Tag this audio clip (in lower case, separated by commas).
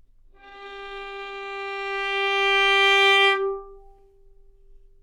music, bowed string instrument, musical instrument